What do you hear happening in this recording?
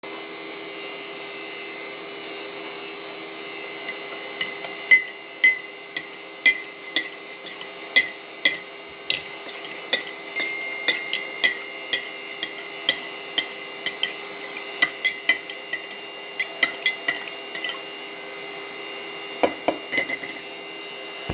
preparing coffee while vaccum cleaner working and getting a phone notification